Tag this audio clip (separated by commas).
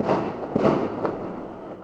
Explosion, Fireworks